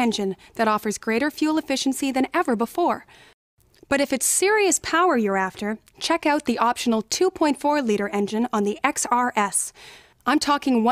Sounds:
Speech

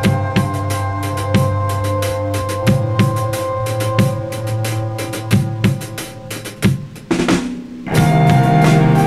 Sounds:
Musical instrument, Snare drum, Music, Plucked string instrument, Drum, Bowed string instrument, Hi-hat, Guitar

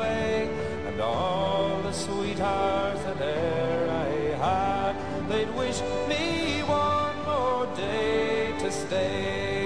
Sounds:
Music

